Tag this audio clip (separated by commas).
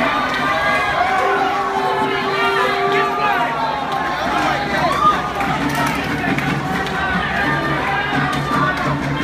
Music, Speech